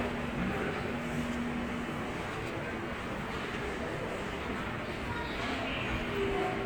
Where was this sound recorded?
in a subway station